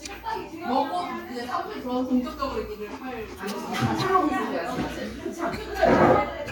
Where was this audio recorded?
in a restaurant